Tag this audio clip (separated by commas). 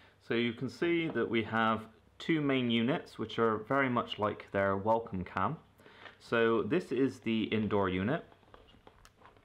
Speech